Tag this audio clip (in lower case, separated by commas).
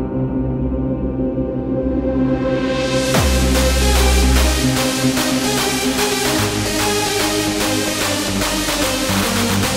techno, electronic music, music